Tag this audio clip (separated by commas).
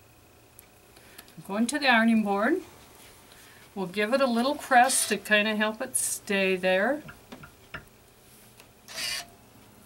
Speech